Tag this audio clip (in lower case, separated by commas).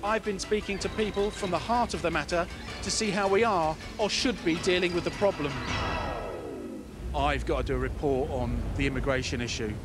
music, speech